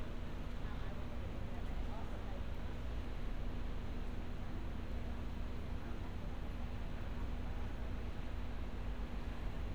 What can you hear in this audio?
person or small group talking